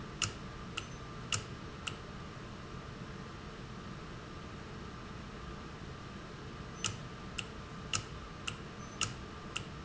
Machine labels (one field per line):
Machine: valve